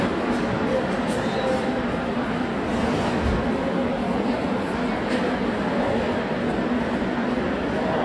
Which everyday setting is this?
subway station